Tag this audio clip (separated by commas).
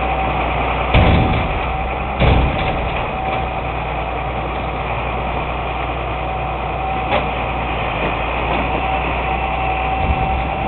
Vehicle